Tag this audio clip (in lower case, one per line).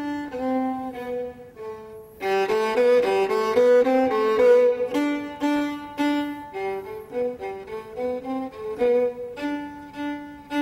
music
musical instrument
fiddle